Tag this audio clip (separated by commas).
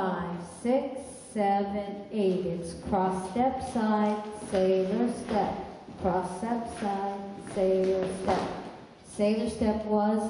Speech